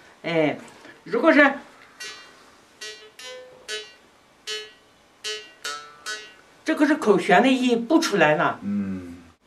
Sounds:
Musical instrument, Music, Speech

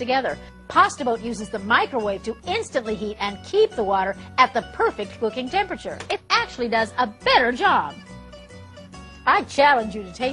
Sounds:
Music, Speech

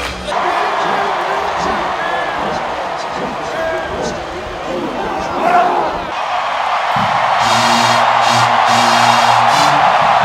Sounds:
Speech, Music, Sound effect

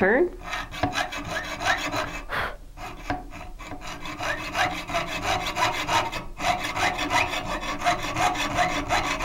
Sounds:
Rub, Sawing, Wood

